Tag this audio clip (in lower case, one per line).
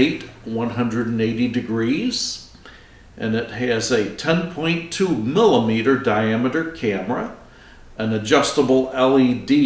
speech